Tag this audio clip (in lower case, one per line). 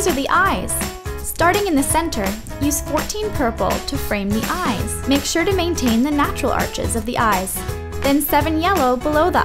speech
music